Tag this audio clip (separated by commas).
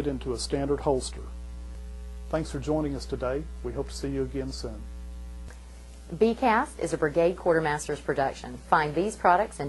Speech